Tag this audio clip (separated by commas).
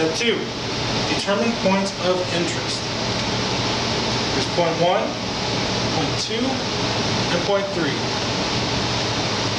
Speech